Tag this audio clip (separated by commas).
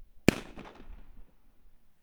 Explosion, Fireworks